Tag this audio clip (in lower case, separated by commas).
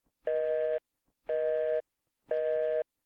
telephone, alarm